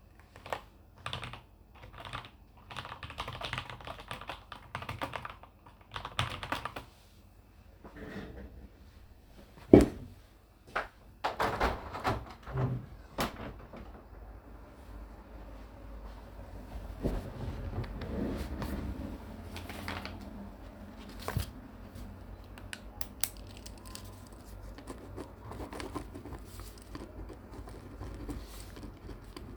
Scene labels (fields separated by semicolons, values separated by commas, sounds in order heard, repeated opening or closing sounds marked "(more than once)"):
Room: office; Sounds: keyboard typing, window